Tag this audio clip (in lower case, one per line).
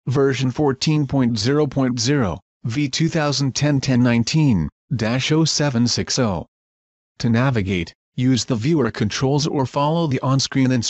speech